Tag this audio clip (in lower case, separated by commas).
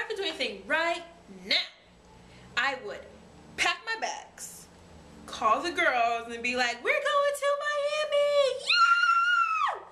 speech, inside a small room